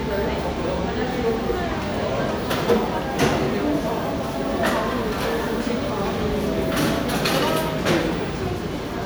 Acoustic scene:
cafe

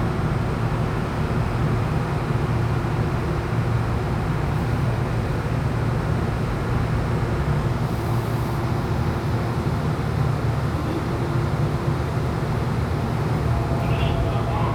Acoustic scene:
subway train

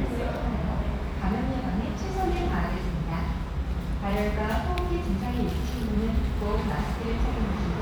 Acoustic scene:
restaurant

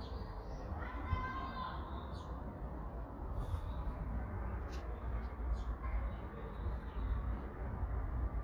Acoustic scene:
residential area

